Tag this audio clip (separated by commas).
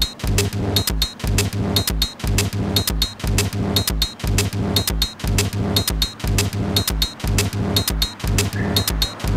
Music